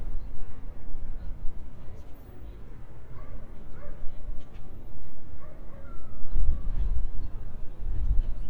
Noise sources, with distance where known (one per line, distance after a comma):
dog barking or whining, far